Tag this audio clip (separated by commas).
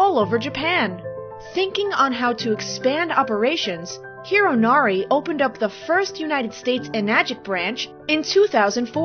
Speech, Music